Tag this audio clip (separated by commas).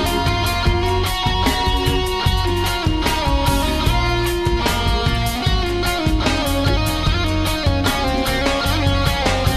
Pop music, Music, Rock music